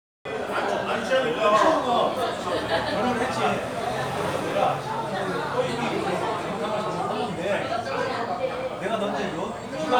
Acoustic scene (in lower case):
crowded indoor space